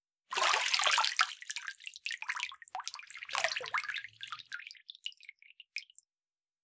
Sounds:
bathtub (filling or washing), domestic sounds

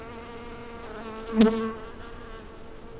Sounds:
insect, wild animals, animal

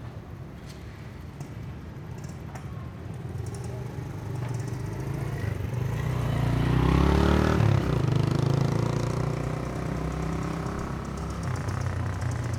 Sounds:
motor vehicle (road), vehicle, motorcycle

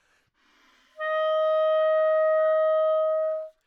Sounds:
music, musical instrument, woodwind instrument

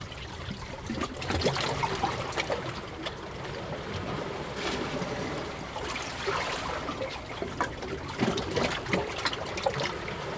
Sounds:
water, ocean, waves

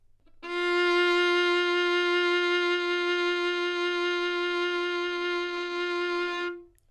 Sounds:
music, bowed string instrument, musical instrument

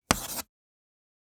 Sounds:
home sounds, writing

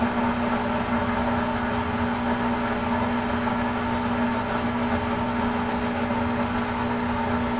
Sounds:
engine

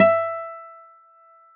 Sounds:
musical instrument, acoustic guitar, guitar, music, plucked string instrument

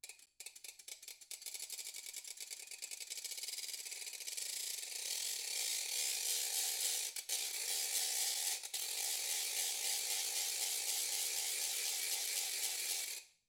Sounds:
mechanisms, ratchet

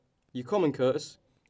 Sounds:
human voice, speech

